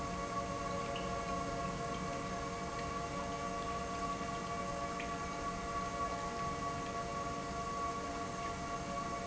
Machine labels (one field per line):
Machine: pump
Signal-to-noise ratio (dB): -6 dB